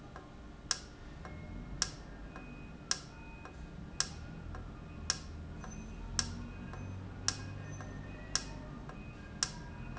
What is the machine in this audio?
valve